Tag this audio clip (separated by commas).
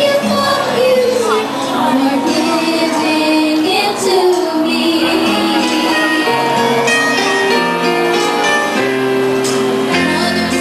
Speech, Music